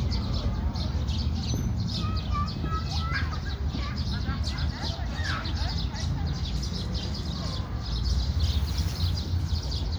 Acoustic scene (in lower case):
park